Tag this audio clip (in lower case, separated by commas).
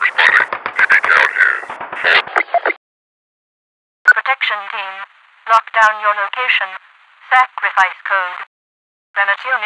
police radio chatter